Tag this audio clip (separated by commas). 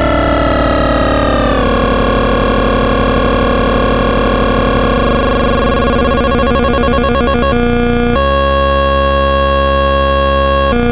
Sampler